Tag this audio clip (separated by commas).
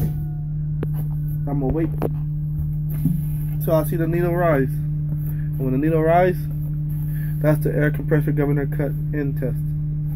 Speech, Vehicle